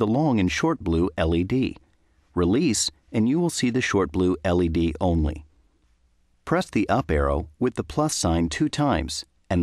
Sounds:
speech

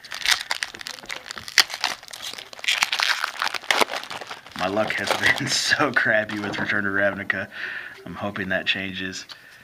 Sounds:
speech

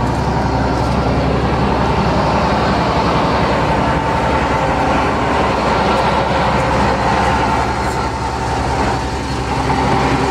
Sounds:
vehicle

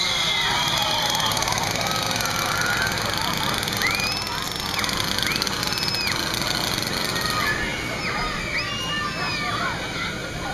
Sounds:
outside, urban or man-made
speech

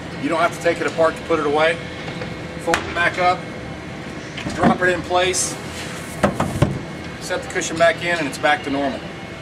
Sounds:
speech

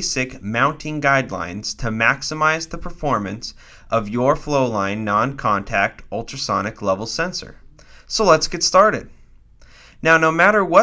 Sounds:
speech

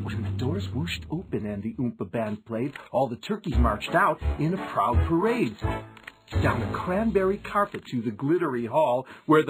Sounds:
speech
music

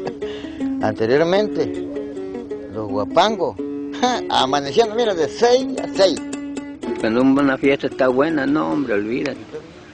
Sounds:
music
speech

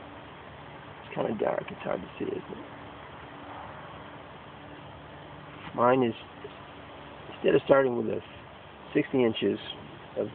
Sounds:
speech

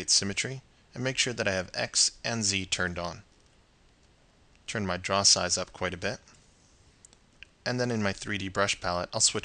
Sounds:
speech

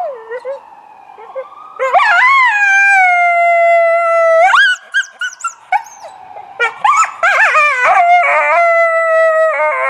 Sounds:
coyote howling

